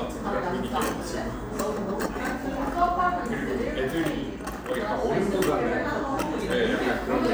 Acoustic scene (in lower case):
cafe